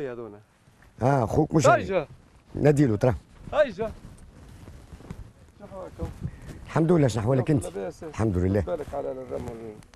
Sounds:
speech

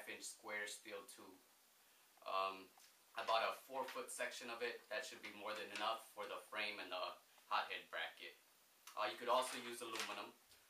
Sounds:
speech

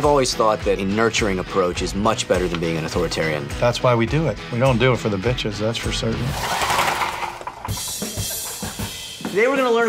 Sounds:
music, speech, inside a small room

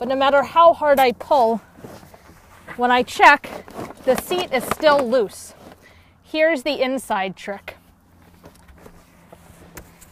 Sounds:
speech

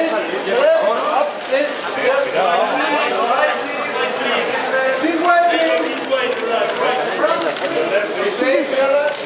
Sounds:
speech

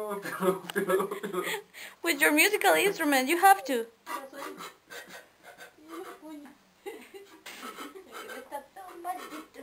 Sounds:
speech, music

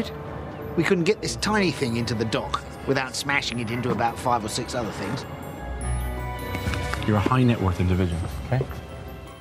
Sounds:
music, sailboat, speech

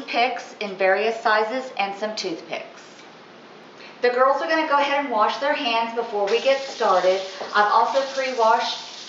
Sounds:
speech

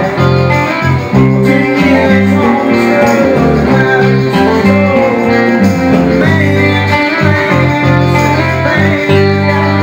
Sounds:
music

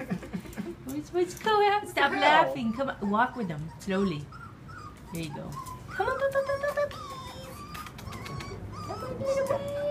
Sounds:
speech

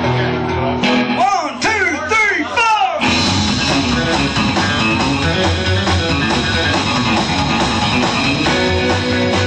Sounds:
speech, music

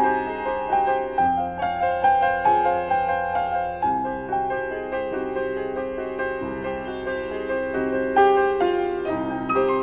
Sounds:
lullaby, music

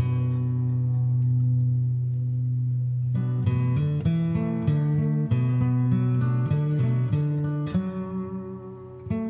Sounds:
music

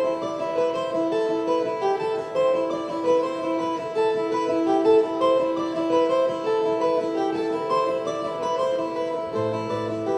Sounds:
music, bowed string instrument, classical music, double bass, wedding music

